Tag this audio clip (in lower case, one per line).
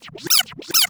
music
musical instrument
scratching (performance technique)